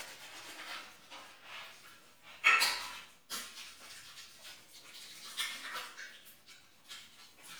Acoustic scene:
restroom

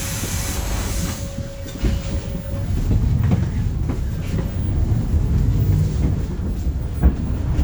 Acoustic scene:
bus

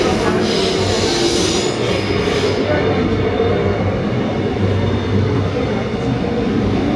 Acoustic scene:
subway train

